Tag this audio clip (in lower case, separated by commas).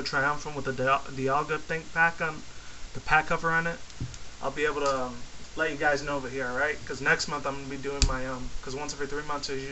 speech